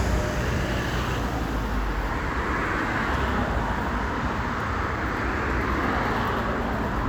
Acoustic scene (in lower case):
street